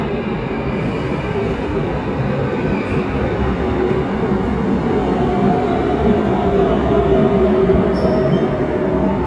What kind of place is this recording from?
subway station